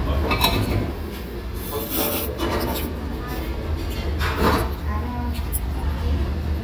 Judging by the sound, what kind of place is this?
restaurant